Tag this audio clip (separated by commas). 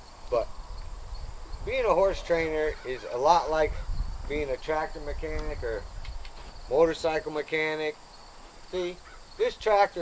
Speech